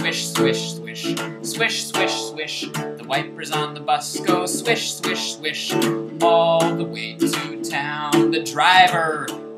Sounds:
Music

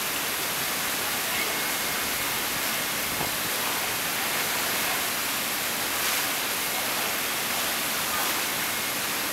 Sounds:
Static

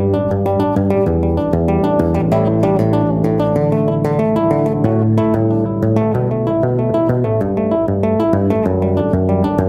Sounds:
tapping guitar

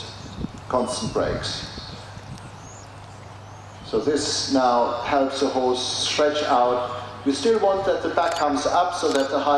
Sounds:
Speech, Animal

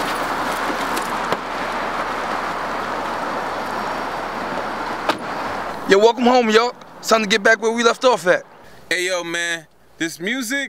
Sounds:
Speech

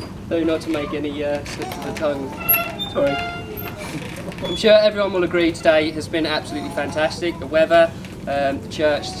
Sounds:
monologue, Speech

